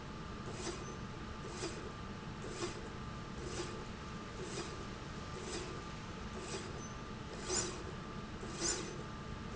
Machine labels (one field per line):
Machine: slide rail